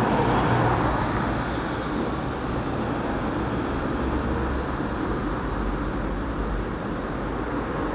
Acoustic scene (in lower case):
street